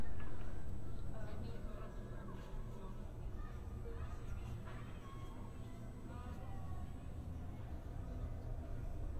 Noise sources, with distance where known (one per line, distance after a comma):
unidentified human voice, far